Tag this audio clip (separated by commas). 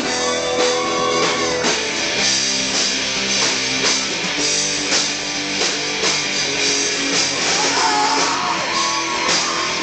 Speech, Music